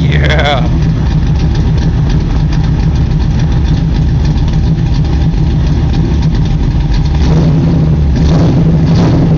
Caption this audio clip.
A man talks, and an engine runs